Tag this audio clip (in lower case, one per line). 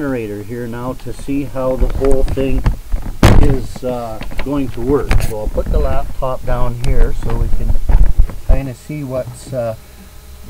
speech